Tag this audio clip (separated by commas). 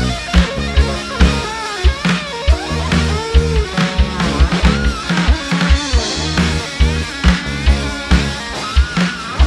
playing bass drum